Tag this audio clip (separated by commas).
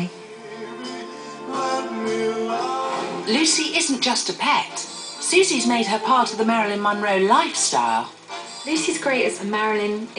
Speech, Music